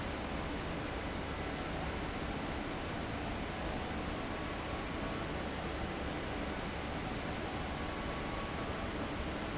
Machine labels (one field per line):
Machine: fan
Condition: abnormal